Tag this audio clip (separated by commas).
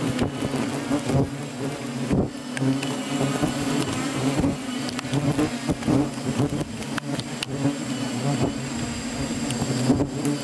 etc. buzzing